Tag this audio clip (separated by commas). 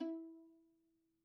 Music, Bowed string instrument, Musical instrument